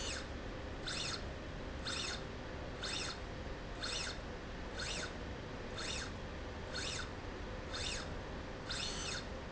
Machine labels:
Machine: slide rail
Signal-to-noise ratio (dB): 0 dB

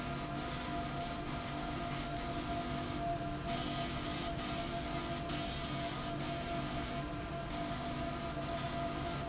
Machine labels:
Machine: slide rail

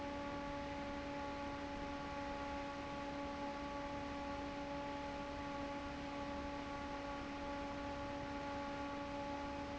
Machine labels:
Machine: fan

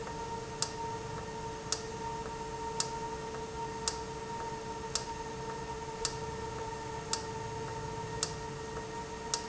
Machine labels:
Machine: valve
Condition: normal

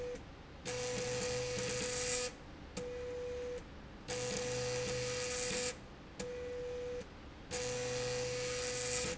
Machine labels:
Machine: slide rail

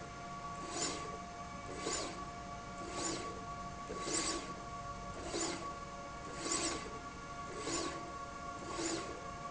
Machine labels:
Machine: slide rail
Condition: abnormal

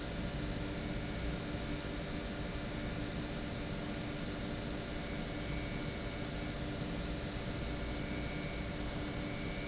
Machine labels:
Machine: pump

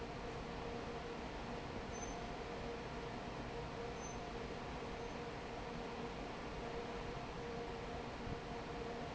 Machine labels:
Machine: fan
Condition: normal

